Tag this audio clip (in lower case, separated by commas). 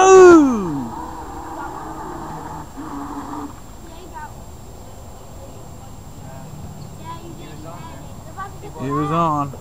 motorboat, speech, boat